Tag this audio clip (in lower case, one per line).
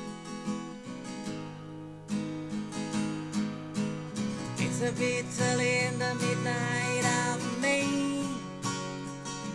music
plucked string instrument
strum
musical instrument
guitar